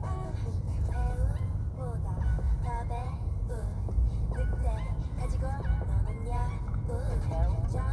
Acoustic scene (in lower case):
car